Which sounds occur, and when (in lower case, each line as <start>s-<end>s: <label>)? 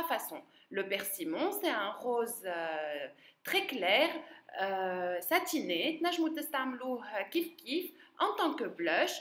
0.0s-9.2s: background noise
0.0s-0.5s: woman speaking
0.4s-0.7s: breathing
0.6s-3.0s: woman speaking
3.1s-3.3s: breathing
3.3s-4.2s: woman speaking
4.4s-7.8s: woman speaking
7.9s-8.1s: breathing
8.1s-9.2s: woman speaking